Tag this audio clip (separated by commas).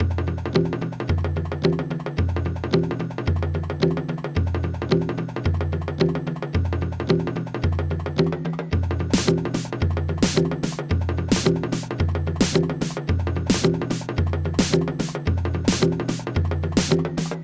Drum kit, Musical instrument, Music, Percussion